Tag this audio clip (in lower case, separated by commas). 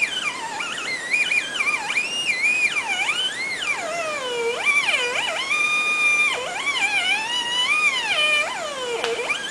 theremin, inside a small room